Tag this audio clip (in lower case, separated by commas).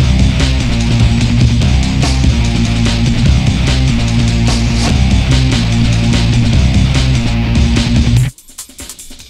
exciting music